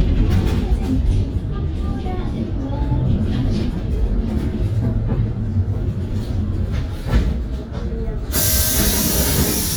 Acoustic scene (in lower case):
bus